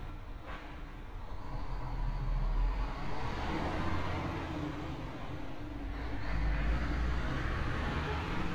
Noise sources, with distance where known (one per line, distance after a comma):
large-sounding engine